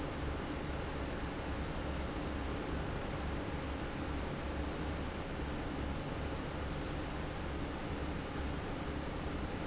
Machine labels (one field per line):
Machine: fan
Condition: abnormal